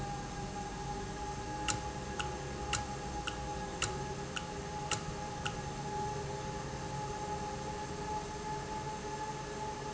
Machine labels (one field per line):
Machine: valve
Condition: normal